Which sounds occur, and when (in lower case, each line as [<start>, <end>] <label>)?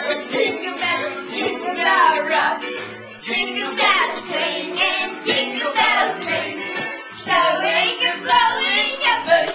[0.00, 9.54] choir
[0.00, 9.54] music